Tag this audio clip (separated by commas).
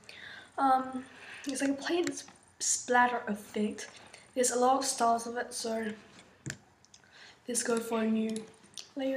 Speech